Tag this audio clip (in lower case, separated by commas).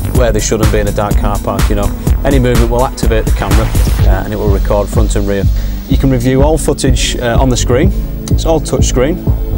music, speech